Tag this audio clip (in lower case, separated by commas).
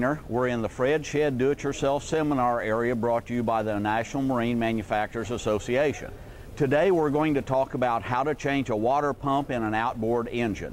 speech